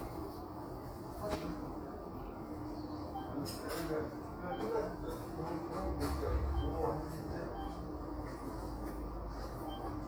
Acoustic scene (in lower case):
crowded indoor space